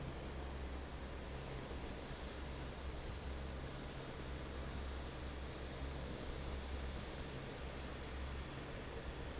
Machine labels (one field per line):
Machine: fan